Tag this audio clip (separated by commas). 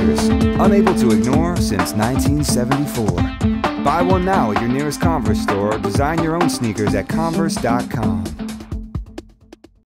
Speech, Music